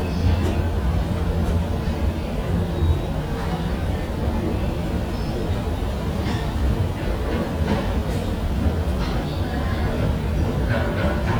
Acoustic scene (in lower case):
subway station